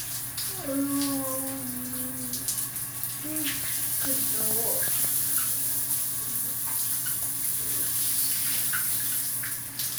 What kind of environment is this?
restroom